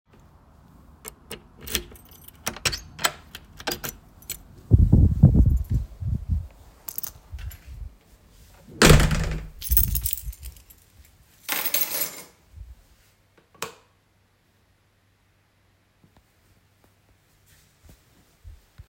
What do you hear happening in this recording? I inserted a key into a lock and opened the door from outside. I removed the key and stepped inside while some wind was briefly audible in the background. I closed the door behind me and then turned on the light switch.